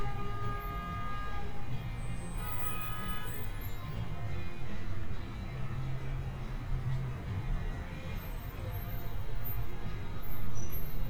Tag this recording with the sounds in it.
car horn